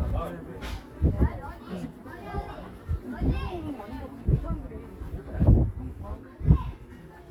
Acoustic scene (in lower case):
park